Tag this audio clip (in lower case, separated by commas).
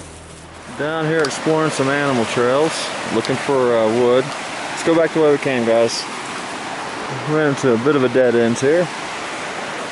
wind, surf